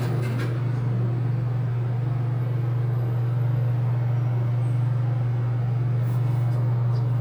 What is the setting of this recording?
elevator